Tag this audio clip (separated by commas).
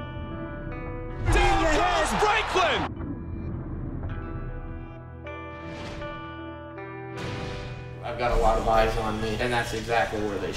Music, Speech